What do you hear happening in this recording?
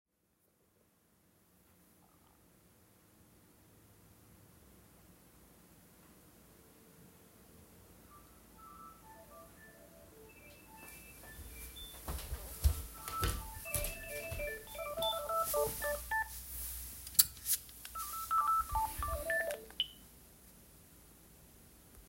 I heard my landline phone ring, so I walked over to answer.